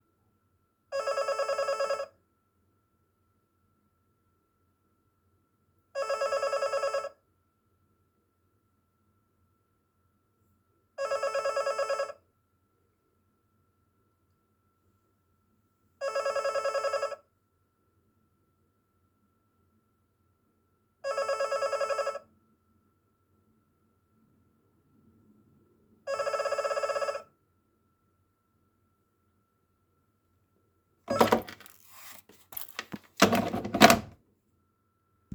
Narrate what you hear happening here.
Your roommate having forgotten his keys home calls you.